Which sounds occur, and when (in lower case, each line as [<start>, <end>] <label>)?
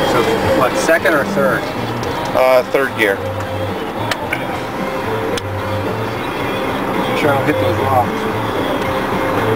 [0.00, 0.34] male speech
[0.00, 8.04] conversation
[0.00, 9.55] music
[0.00, 9.55] singing
[0.00, 9.55] truck
[0.59, 1.58] male speech
[1.92, 2.02] clicking
[2.18, 2.25] clicking
[2.29, 3.14] male speech
[3.14, 3.22] clicking
[3.35, 3.43] generic impact sounds
[4.06, 4.16] generic impact sounds
[4.26, 4.38] generic impact sounds
[5.32, 5.38] clicking
[7.10, 7.54] male speech
[7.67, 8.03] male speech
[8.74, 8.84] generic impact sounds